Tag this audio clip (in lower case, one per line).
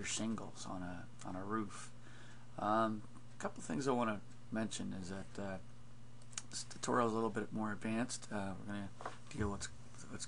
speech